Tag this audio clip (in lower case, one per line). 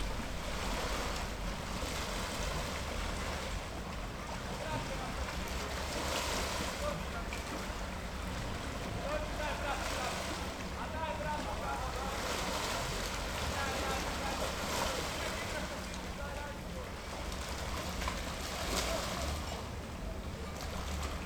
ocean
water
vehicle
water vehicle